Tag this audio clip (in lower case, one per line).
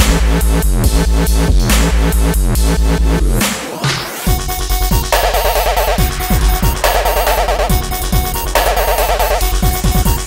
sound effect
dubstep
electronic music
music